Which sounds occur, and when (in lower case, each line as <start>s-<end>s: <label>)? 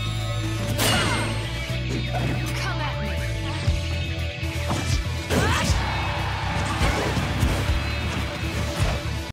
0.0s-9.3s: music
0.0s-9.3s: video game sound
0.8s-1.3s: groan
2.5s-3.4s: speech
5.3s-5.6s: speech